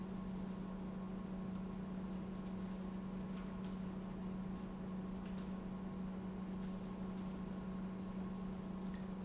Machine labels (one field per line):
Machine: pump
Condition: normal